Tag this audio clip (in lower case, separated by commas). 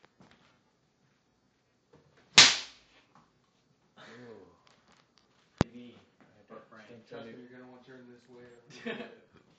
man speaking, speech